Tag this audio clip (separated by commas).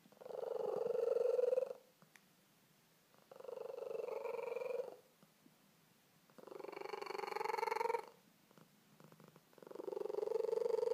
Purr, pets, Cat, cat purring, Animal